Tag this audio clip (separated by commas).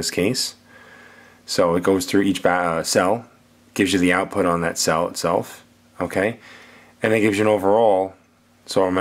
Speech